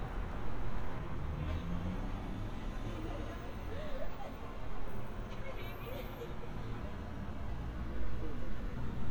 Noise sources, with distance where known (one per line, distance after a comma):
person or small group talking, near